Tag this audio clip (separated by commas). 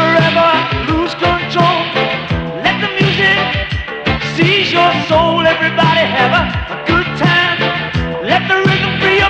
Burst, Music